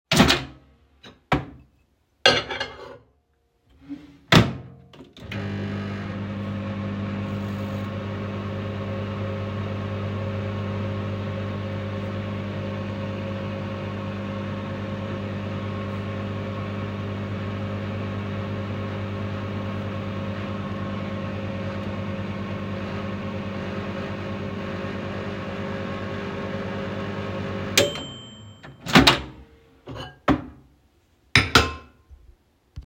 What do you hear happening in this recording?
Opened the microwave, grabbed a bowl, placed it inside, closed the door, turned the microwave on, waited for it to finish, opened the door and removed the bowl.